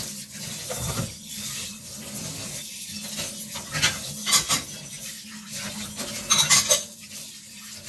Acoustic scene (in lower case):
kitchen